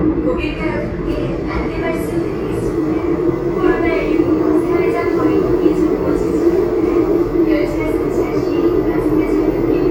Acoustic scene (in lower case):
subway train